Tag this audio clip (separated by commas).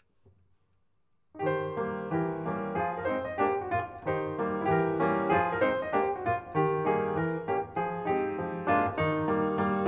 Music